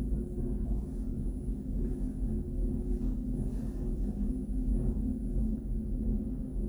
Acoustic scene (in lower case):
elevator